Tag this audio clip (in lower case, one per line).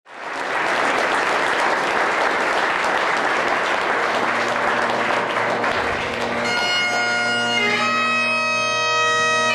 woodwind instrument
bagpipes